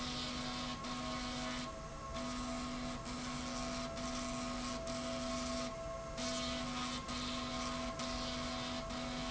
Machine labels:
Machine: slide rail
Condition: abnormal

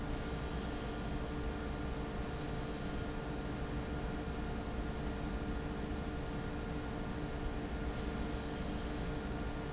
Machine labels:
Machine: fan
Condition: normal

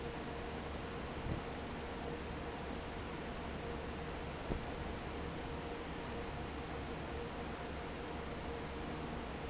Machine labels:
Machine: fan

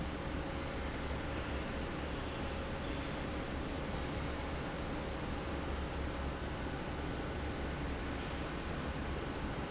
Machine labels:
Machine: fan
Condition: normal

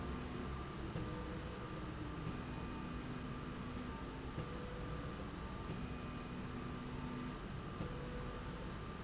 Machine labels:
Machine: slide rail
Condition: normal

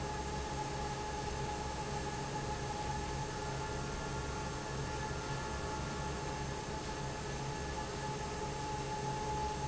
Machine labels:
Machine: fan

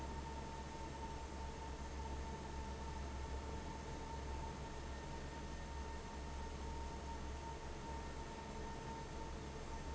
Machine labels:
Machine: fan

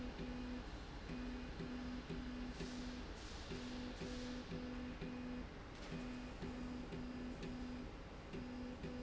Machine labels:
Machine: slide rail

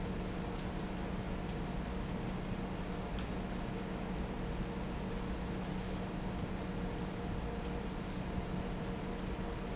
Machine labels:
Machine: fan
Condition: normal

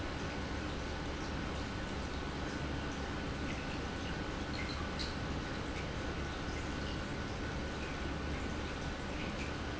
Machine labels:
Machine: pump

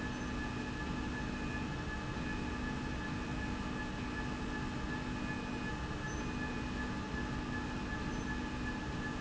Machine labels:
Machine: slide rail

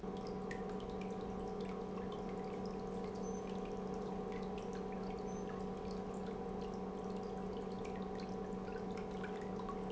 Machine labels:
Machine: pump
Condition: normal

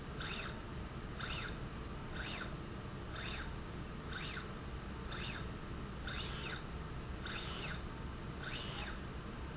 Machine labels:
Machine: slide rail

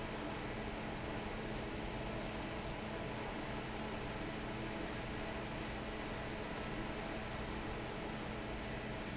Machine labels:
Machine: fan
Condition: normal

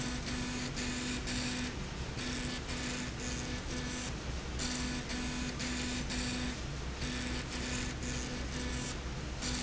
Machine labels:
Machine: slide rail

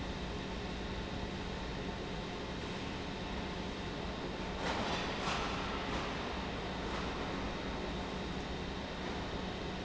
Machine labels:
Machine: pump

